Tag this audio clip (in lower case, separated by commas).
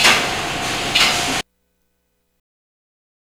mechanisms